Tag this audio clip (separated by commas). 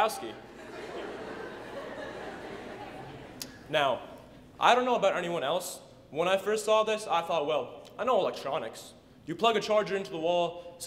Speech, Narration, man speaking